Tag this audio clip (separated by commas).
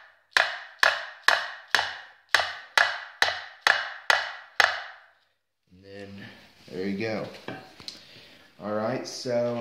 hammering nails